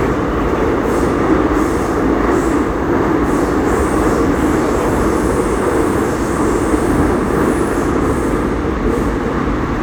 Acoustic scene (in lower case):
subway train